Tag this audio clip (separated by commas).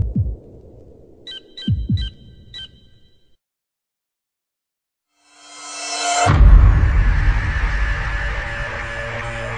Sonar, Music, Electronic music